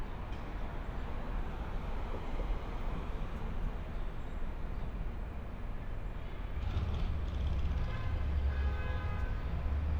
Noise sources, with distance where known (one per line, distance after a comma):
medium-sounding engine, far
car horn, far